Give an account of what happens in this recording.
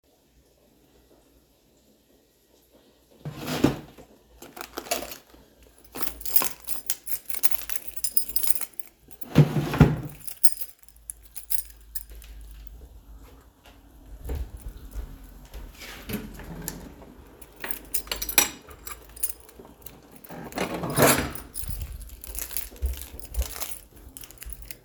Opened drawer, took out keychain, closed windows.